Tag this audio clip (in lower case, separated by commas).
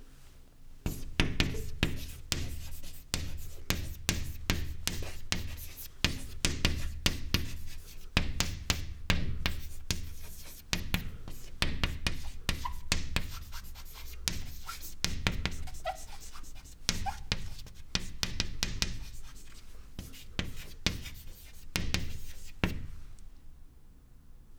domestic sounds, writing